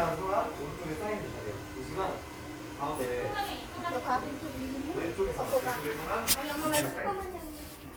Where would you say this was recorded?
in a crowded indoor space